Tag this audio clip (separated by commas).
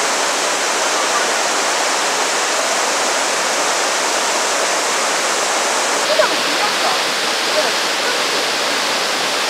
waterfall burbling